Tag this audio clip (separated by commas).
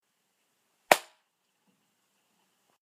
Clapping, Hands